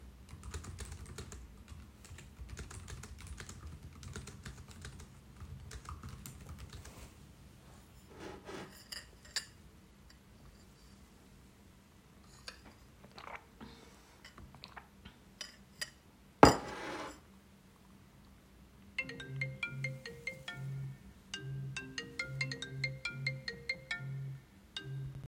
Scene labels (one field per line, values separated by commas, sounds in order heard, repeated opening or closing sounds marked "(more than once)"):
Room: office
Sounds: keyboard typing, cutlery and dishes, phone ringing